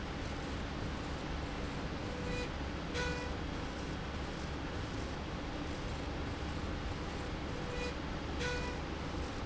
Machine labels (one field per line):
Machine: slide rail